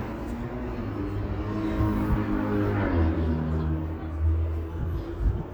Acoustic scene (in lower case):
residential area